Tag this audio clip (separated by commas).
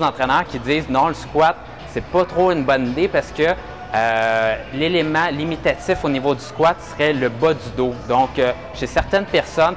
Speech, Music